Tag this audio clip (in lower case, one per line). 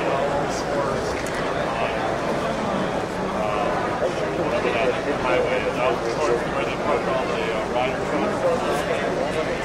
speech